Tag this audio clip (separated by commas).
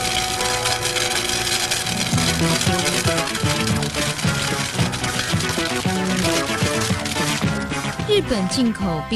Music, Speech